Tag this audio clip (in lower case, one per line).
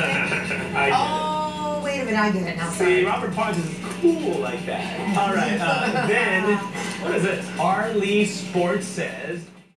speech